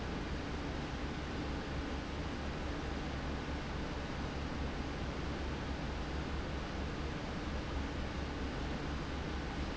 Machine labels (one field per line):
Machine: fan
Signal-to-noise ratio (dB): -6 dB